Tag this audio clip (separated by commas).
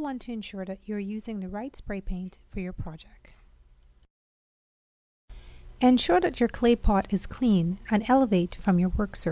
Speech